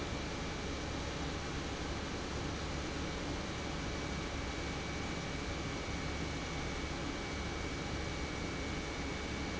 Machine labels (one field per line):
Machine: pump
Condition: normal